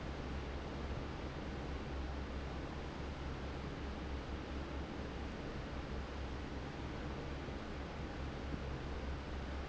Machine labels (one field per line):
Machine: fan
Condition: normal